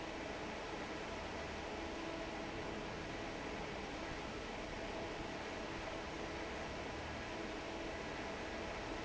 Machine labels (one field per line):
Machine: fan